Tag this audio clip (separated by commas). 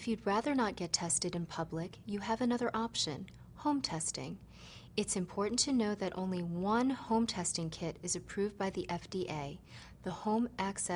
Speech